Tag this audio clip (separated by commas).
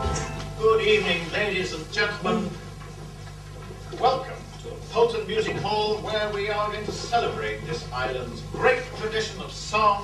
Speech